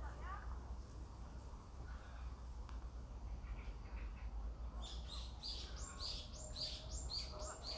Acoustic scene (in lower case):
park